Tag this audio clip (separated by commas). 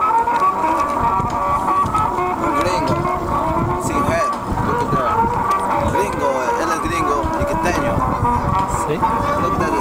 Vehicle, Speech, Music, Water vehicle